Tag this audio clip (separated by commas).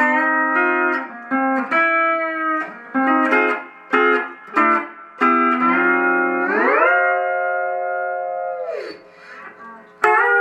Plucked string instrument, Music, Musical instrument, Guitar, Steel guitar